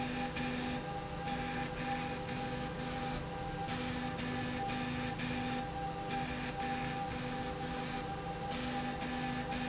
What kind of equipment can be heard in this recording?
slide rail